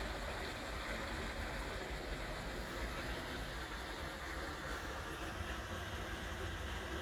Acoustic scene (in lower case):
park